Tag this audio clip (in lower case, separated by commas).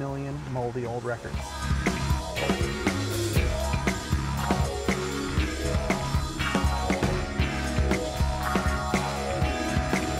speech, music, house music